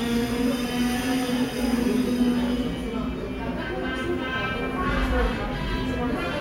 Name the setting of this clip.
subway station